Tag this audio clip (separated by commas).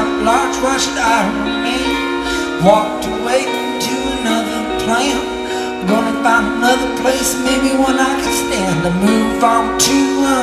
Music